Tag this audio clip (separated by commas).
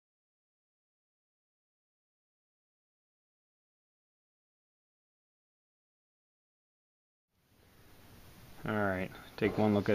Speech